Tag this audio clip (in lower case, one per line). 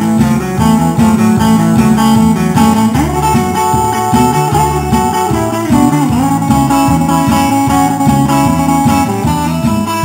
acoustic guitar
musical instrument
guitar
strum
plucked string instrument
music